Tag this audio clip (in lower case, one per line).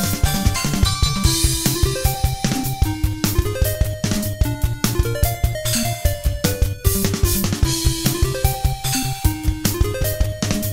music